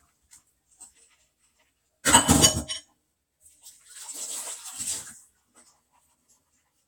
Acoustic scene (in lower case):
kitchen